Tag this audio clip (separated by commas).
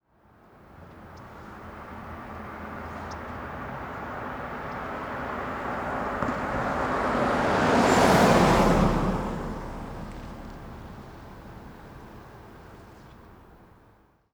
Car, Vehicle, Motor vehicle (road), Car passing by